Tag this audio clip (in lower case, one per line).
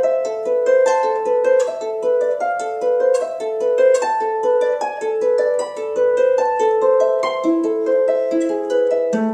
playing harp